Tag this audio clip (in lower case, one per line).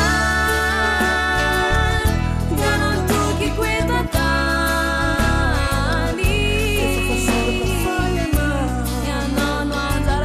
christmas music
music
singing